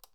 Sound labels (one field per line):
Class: switch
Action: being turned off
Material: plastic